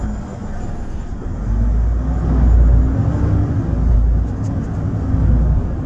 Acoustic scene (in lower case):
bus